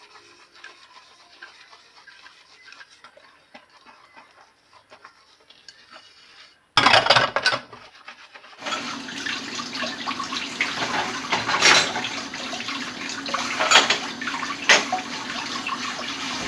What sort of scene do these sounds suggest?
kitchen